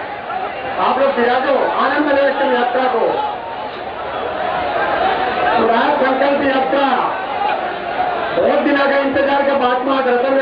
A man is giving a speech in a foreign language into a muffled microphone